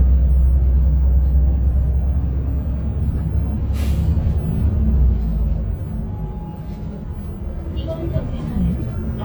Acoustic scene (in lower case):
bus